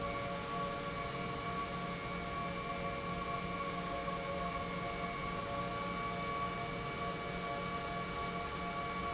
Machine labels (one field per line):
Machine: pump